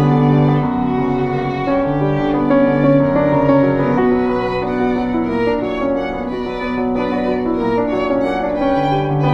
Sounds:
Music, Musical instrument, fiddle

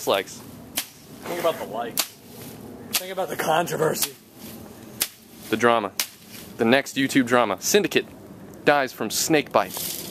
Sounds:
outside, rural or natural, Speech

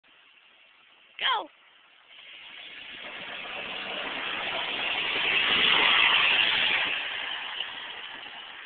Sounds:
Speech

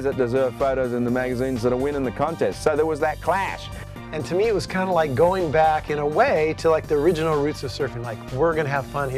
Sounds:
Speech, Music

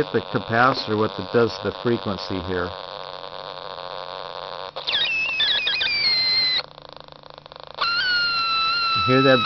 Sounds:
inside a small room, Speech

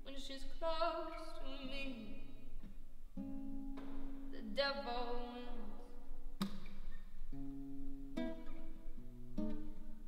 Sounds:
Music

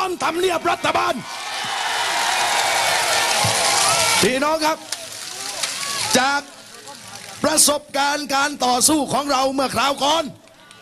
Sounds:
Speech

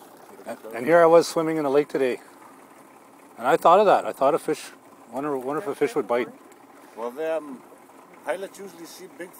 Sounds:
Speech, sailing ship

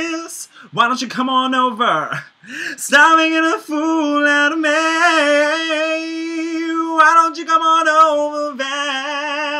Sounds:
Male singing

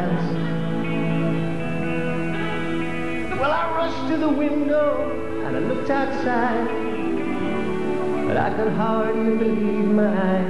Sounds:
Music

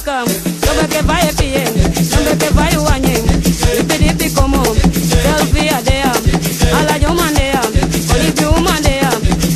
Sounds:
Music, Folk music

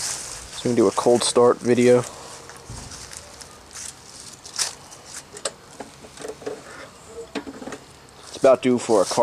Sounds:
Speech

